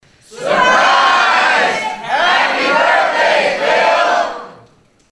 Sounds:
crowd
human group actions

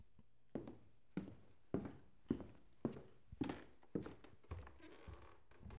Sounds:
walk

